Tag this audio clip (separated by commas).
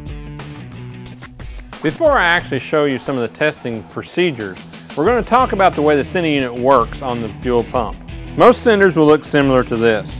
Music, Speech